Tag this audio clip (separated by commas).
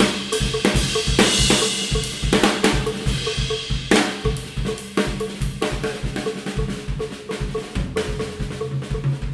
Rimshot, Drum roll, Drum kit, Bass drum, Percussion, Snare drum, Drum